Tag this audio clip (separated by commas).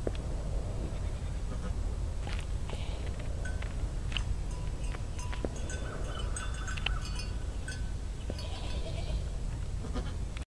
Bleat, Sheep